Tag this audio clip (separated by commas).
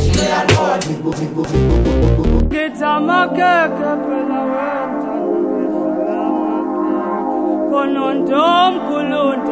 Music, Vocal music